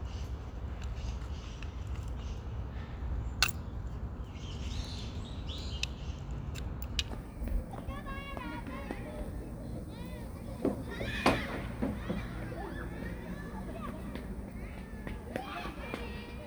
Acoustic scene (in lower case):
park